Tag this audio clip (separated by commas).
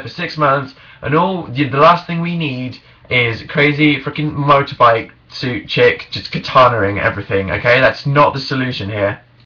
Speech